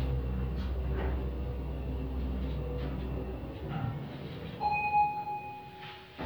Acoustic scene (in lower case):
elevator